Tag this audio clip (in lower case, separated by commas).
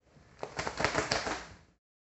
wild animals, animal, bird